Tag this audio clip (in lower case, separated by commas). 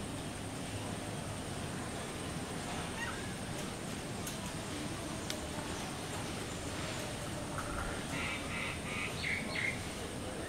woodpecker pecking tree